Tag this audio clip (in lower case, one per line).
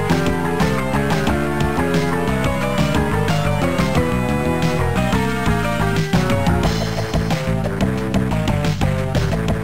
soundtrack music
music